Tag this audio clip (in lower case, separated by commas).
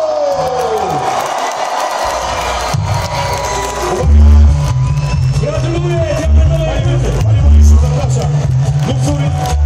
crowd